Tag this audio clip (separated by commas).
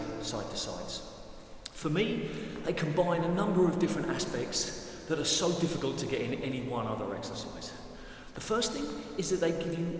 playing squash